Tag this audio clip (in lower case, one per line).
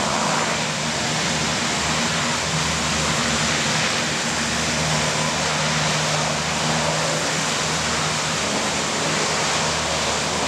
vehicle